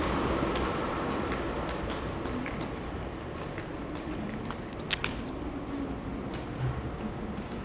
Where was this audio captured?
in a subway station